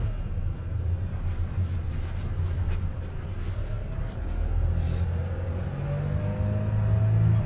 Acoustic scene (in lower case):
car